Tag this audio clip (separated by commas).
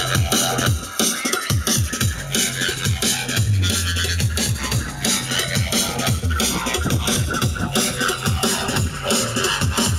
Music